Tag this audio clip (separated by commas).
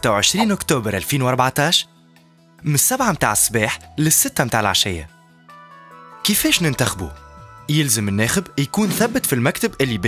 Speech, Music